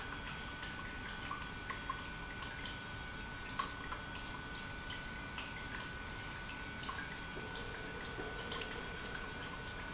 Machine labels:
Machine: pump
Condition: normal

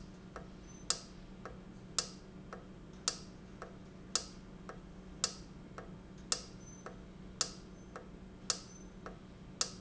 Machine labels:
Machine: valve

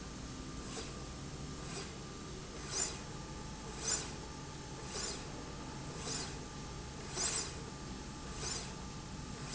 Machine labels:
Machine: slide rail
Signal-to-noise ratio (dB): 0 dB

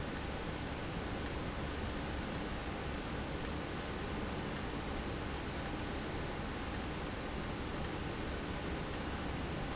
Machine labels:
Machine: valve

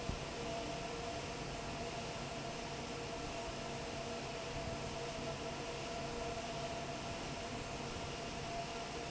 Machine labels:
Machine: fan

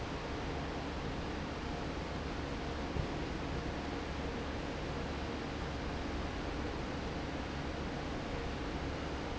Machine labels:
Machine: fan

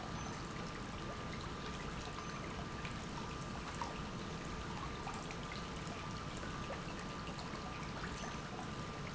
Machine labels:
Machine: pump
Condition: normal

